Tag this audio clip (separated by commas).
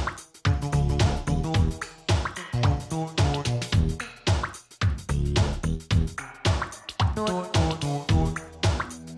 Music